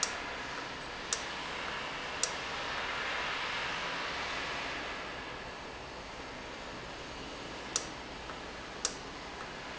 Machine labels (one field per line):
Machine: valve